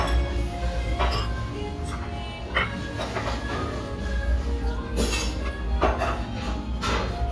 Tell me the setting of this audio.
restaurant